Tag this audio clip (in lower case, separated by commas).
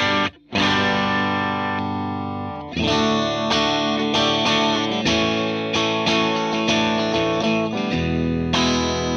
musical instrument, plucked string instrument, guitar, music, electric guitar